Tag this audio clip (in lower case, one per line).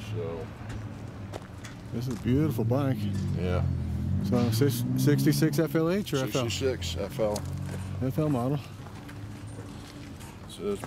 speech